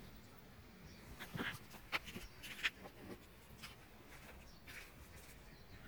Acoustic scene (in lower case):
park